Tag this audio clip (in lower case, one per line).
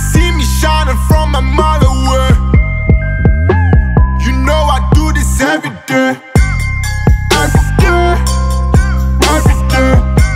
music